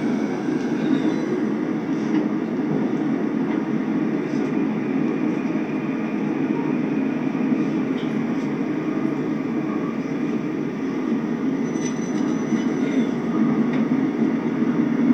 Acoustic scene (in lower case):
subway train